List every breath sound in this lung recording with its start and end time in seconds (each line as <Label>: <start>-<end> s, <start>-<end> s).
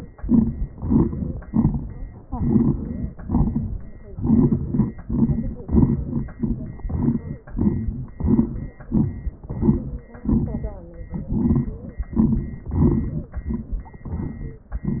Inhalation: 0.18-0.71 s, 1.44-2.19 s, 3.24-4.16 s, 4.70-5.10 s, 5.67-6.38 s, 6.80-7.50 s, 8.15-8.90 s, 9.48-10.24 s, 11.31-12.06 s, 12.74-13.45 s, 14.06-14.79 s
Exhalation: 0.74-1.45 s, 2.26-3.18 s, 4.19-4.70 s, 5.11-5.60 s, 6.35-6.81 s, 7.49-8.18 s, 8.92-9.49 s, 10.28-11.28 s, 12.10-12.72 s, 13.45-14.05 s
Crackles: 0.74-1.45 s, 1.50-2.19 s, 2.26-3.18 s, 3.24-4.16 s, 4.17-4.66 s, 4.70-5.10 s, 5.12-5.62 s, 5.67-6.38 s, 6.80-7.50 s, 7.50-8.18 s, 8.19-8.90 s, 8.91-9.42 s, 9.48-10.24 s, 10.28-11.28 s, 11.31-12.06 s, 12.10-12.72 s, 12.74-13.45 s, 13.45-14.05 s, 14.06-14.79 s